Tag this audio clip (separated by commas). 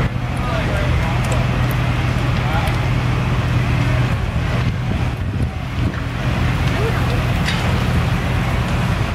Speech